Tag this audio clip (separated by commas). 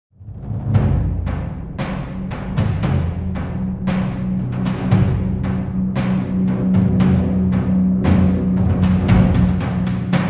Timpani, Music